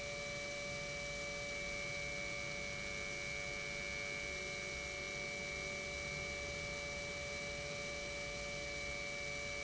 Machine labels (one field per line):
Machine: pump